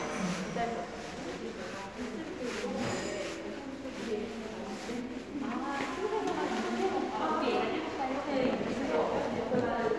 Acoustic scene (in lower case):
crowded indoor space